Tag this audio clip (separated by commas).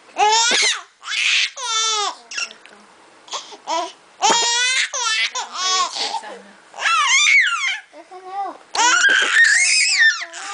Speech